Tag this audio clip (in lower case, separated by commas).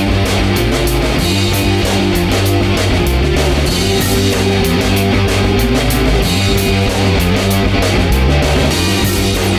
music